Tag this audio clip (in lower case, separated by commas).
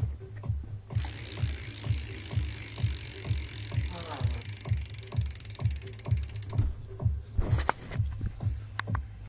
bicycle, music